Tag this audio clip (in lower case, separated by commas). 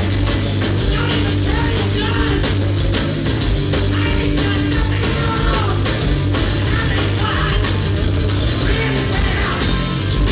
roll, singing, music